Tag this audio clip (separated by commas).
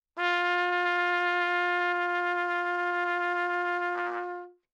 Musical instrument, Brass instrument, Trumpet, Music